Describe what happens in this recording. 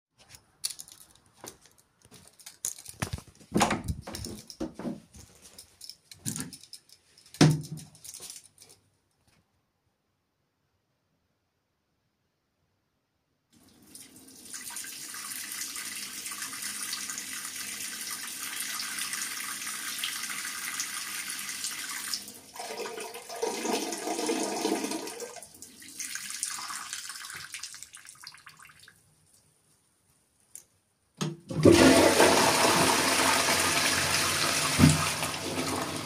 I walked towards the toilet, opened the door, raised the WC lids up, passed out urine, and finally flushed